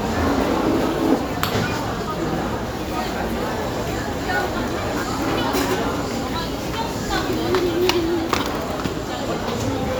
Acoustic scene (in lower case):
restaurant